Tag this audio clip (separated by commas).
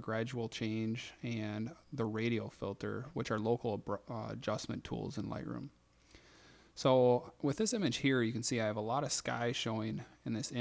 Speech